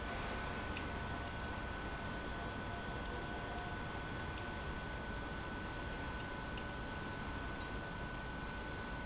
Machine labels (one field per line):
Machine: pump